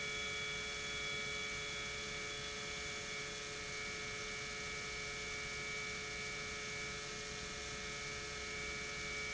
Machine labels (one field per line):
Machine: pump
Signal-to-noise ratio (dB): 6 dB